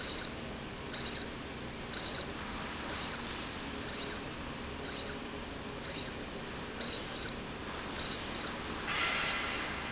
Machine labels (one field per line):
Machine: slide rail